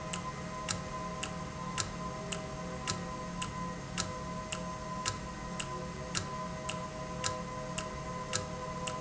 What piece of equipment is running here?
valve